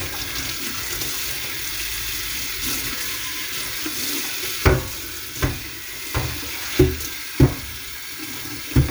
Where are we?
in a kitchen